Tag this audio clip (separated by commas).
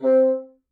Music, Musical instrument, Wind instrument